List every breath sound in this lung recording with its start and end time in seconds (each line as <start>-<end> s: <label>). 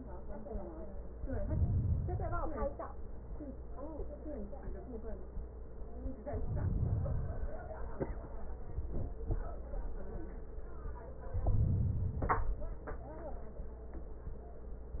1.15-2.65 s: inhalation
6.31-7.70 s: inhalation
11.38-12.77 s: inhalation
11.38-12.77 s: crackles